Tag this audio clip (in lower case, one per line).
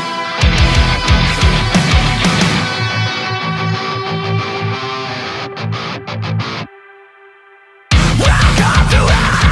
music